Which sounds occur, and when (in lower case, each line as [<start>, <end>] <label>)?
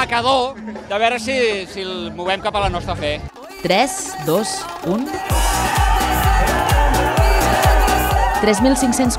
[0.00, 0.57] male speech
[0.00, 9.15] music
[0.48, 1.04] laughter
[0.87, 2.05] male speech
[2.18, 3.24] male speech
[3.34, 9.15] male singing
[3.60, 4.06] woman speaking
[4.17, 4.62] woman speaking
[4.83, 5.24] woman speaking
[5.25, 9.15] shout
[5.29, 9.15] crowd
[8.37, 9.15] woman speaking